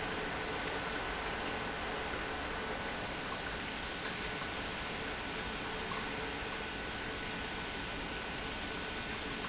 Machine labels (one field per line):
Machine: pump